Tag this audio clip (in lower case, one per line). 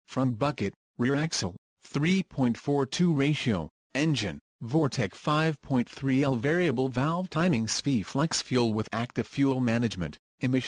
speech